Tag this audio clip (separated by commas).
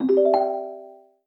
Telephone, Chime, Alarm, Ringtone, Bell